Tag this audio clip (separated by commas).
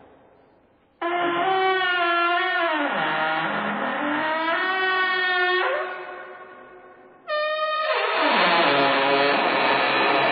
Sliding door